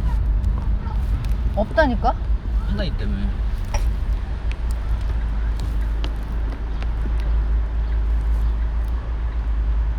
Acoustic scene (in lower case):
car